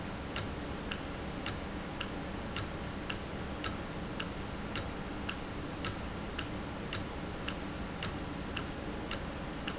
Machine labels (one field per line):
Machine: valve